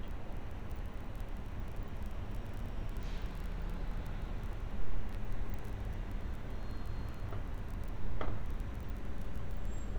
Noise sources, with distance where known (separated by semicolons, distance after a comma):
background noise